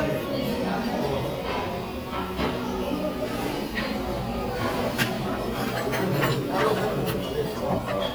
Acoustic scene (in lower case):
crowded indoor space